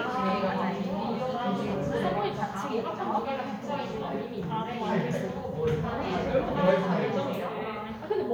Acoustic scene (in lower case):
crowded indoor space